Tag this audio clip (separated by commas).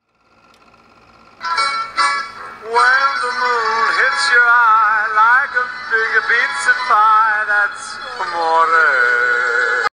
Music